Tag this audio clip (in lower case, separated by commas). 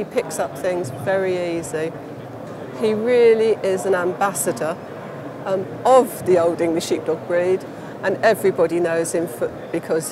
speech